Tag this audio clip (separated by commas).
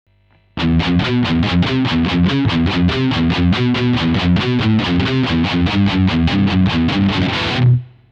Plucked string instrument, Electric guitar, Guitar, Musical instrument, Music